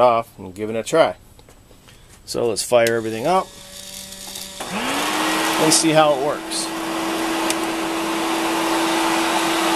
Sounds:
speech

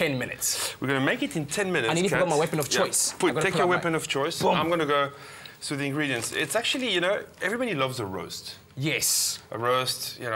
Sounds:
speech

